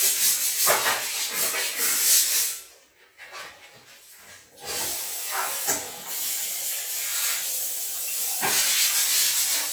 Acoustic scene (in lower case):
restroom